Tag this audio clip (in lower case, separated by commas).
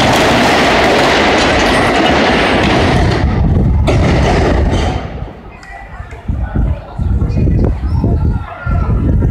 speech